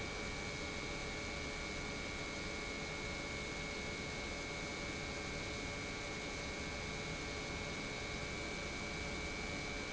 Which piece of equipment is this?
pump